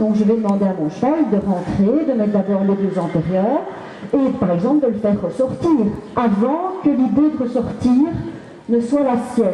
Woman speaking in microphone